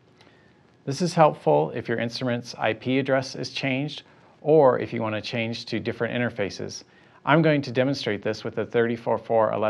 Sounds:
Speech

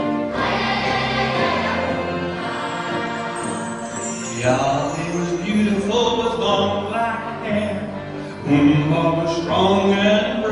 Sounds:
Music, Choir, Orchestra

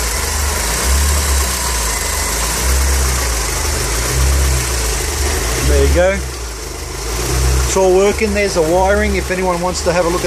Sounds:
Speech, Car, Vehicle, outside, urban or man-made, Idling

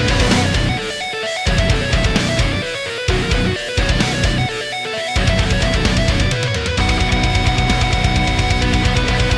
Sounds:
Music

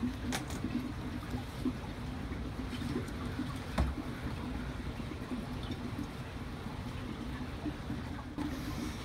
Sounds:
otter growling

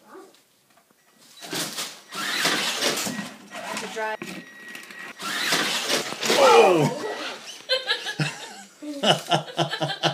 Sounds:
Speech, Vehicle

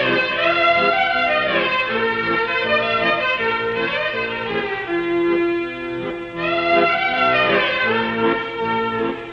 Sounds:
Music, Musical instrument, fiddle

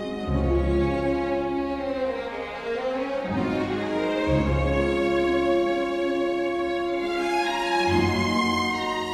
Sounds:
Music

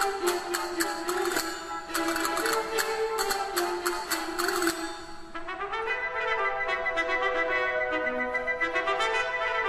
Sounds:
playing castanets

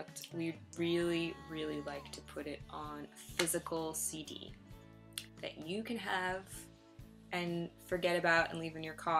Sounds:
Music, Speech

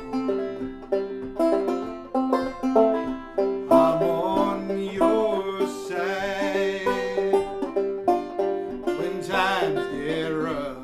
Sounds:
Plucked string instrument, Banjo, Musical instrument, Guitar, Music, Bluegrass, Country

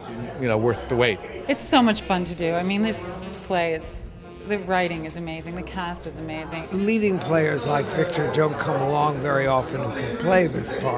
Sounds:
Speech

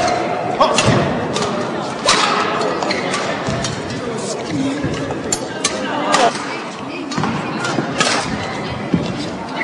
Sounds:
inside a large room or hall, Speech

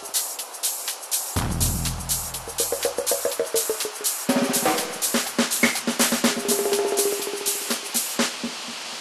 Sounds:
White noise

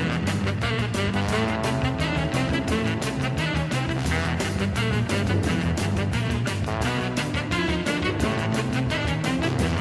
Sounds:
Music, Pop music

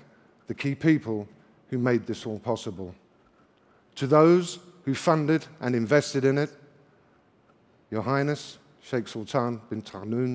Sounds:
Male speech, Speech

